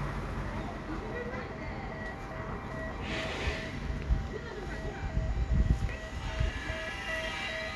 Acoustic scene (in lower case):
residential area